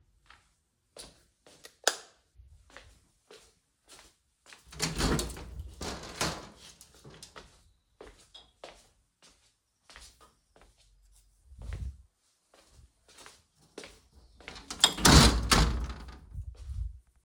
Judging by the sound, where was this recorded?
bedroom